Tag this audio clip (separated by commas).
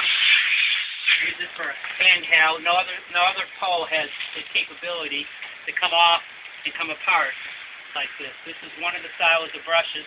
Speech